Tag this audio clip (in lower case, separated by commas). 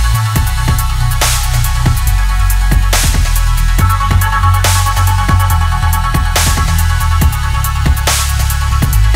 trance music, dubstep, electronic music, music